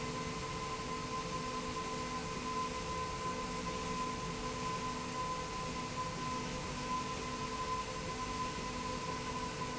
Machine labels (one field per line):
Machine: slide rail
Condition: normal